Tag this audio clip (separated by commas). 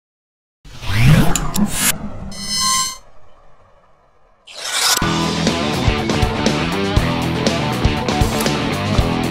Music